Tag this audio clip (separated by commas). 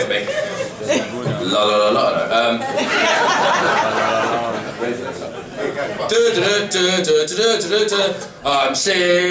Male singing, Speech